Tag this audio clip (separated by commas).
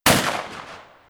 gunfire, Explosion